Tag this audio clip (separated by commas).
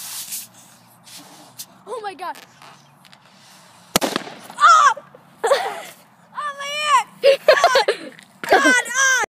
Speech, Burst